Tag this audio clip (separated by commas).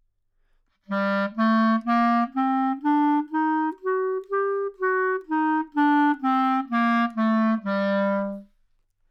Wind instrument, Music, Musical instrument